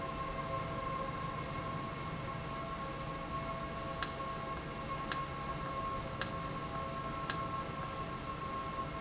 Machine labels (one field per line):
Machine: valve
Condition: normal